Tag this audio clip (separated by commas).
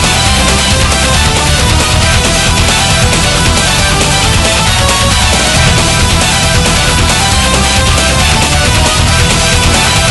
Music